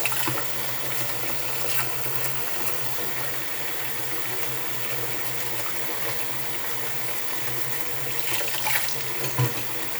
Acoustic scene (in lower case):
restroom